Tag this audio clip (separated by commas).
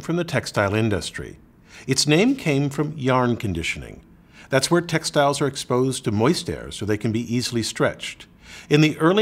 Speech